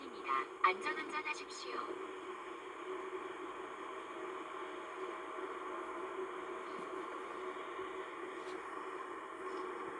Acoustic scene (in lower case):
car